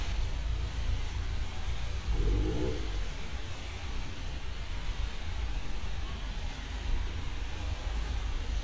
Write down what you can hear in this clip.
medium-sounding engine